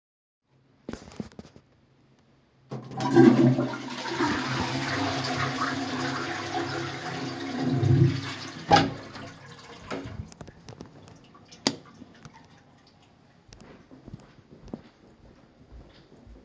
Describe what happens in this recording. I flushed the toilet. Then I opened the door and walked out and continued walking a bit longer.